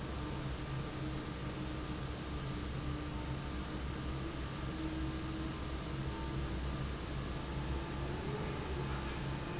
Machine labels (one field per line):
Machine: fan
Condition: normal